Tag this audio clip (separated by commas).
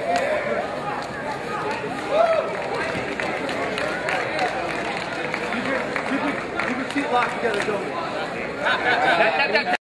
Speech